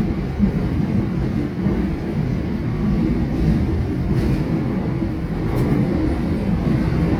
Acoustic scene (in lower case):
subway train